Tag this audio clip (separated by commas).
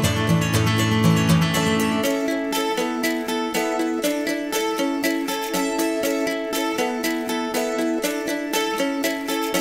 Music